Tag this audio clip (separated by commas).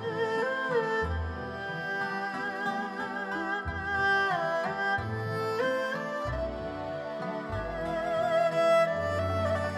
playing erhu